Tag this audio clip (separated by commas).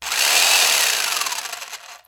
Sawing, Tools